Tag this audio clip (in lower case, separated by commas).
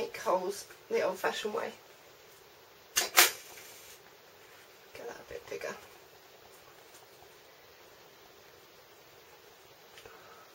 speech, inside a small room